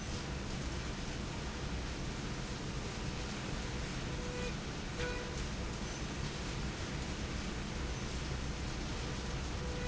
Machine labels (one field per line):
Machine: slide rail